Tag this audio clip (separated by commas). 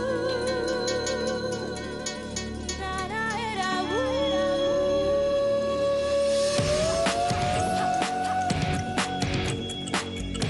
Music